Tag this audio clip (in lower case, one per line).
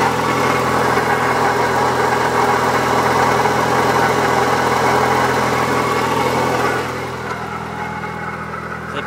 speech